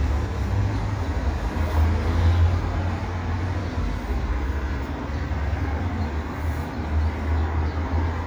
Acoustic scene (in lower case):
residential area